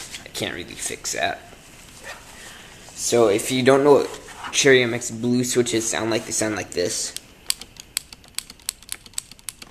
A man is speaking and clicking is heard at the end